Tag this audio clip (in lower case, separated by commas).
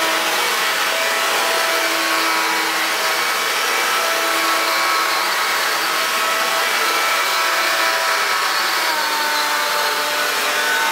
vacuum cleaner